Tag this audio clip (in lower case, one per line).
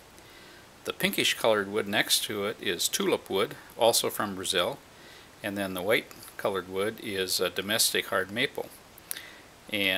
speech